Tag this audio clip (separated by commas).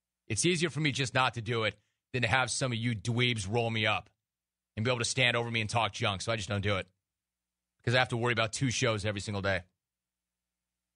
Speech